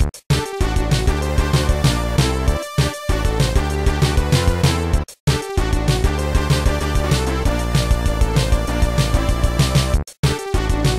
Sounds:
Music

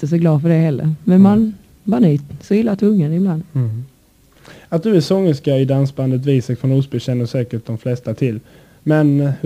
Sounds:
Speech

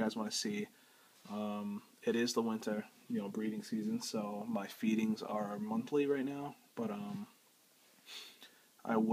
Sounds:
inside a small room, Speech

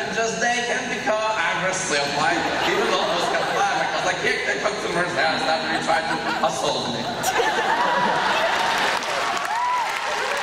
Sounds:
Speech, man speaking

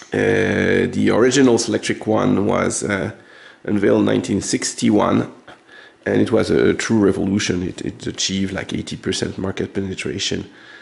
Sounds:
typing on typewriter

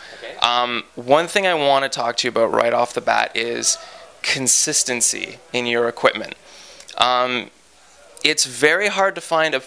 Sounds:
Speech

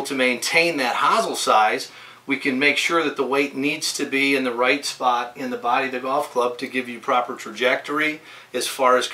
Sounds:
Speech

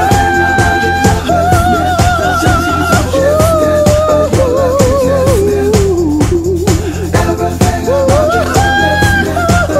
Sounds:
Music, Singing, Hip hop music

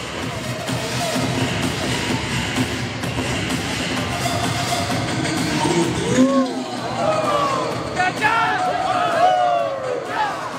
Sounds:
Speech, Music

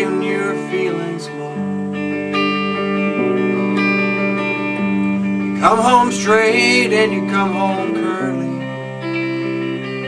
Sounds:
Music

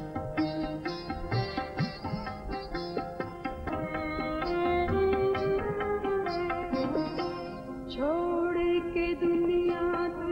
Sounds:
Singing, Music, Sitar

